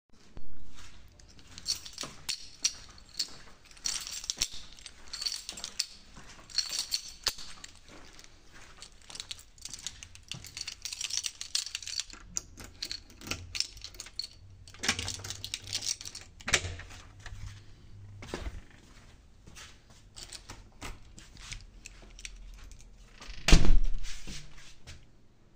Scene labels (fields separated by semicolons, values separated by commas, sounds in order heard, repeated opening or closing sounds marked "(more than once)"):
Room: hallway, bedroom; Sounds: footsteps, keys, door (more than once)